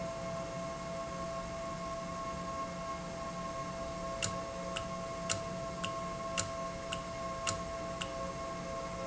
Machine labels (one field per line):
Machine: valve